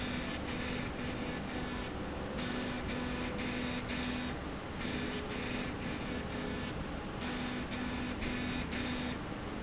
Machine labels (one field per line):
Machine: slide rail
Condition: abnormal